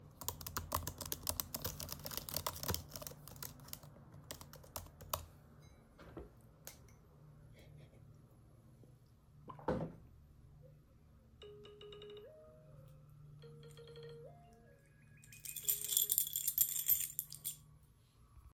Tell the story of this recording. i am typing on my laptop and takes a sip of water . Then hears the ringtone and pick up my keys to leave.